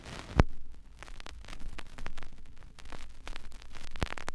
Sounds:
Crackle

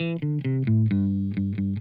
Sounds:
Plucked string instrument, Electric guitar, Guitar, Musical instrument, Music

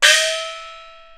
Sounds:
Music, Musical instrument, Percussion, Gong

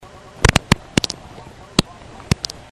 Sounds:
Fart

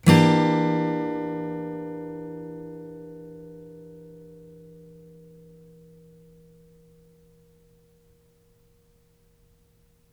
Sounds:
Strum, Musical instrument, Music, Guitar, Plucked string instrument

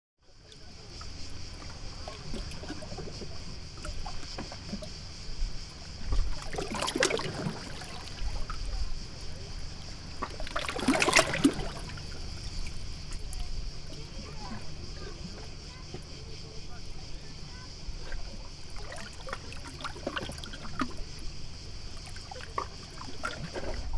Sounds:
Ocean, Water, Waves

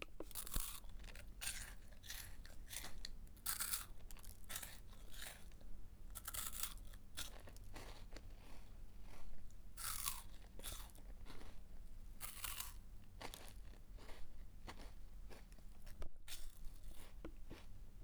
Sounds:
mastication

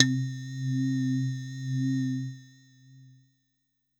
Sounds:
Musical instrument, Keyboard (musical), Music

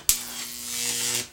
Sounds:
Wild animals, Insect, Animal, Buzz

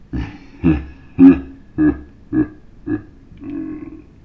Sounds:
Laughter, Human voice

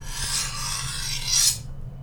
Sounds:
Cutlery, Domestic sounds

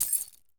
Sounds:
Keys jangling, home sounds

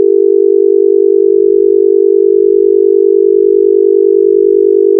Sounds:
Telephone, Alarm

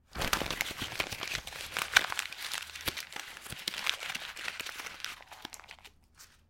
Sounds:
crinkling

